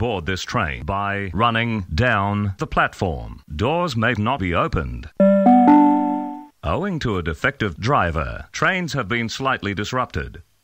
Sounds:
Speech, Music

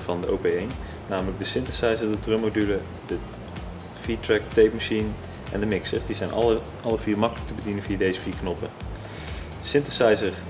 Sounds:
Speech, Music

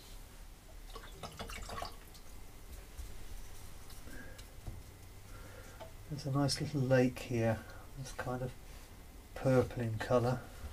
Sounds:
inside a small room, Speech

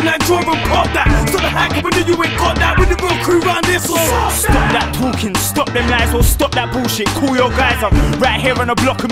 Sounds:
Music, Funk

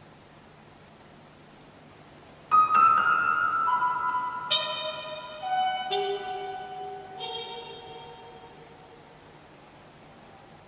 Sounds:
Music

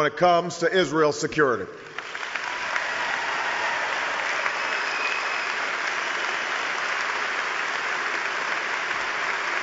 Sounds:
Male speech, Narration, Speech

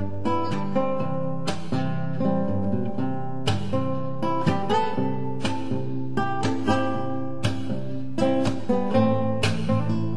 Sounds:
Guitar, Music, Plucked string instrument, Strum, Musical instrument

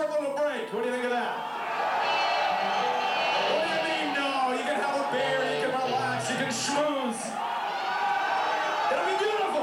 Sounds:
Speech

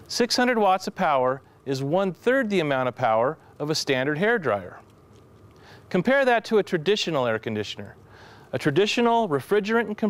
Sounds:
Speech

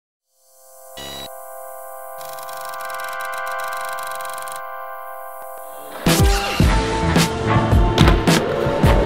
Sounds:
Skateboard, Music

